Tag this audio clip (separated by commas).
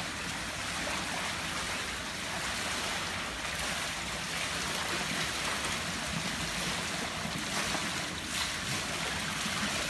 swimming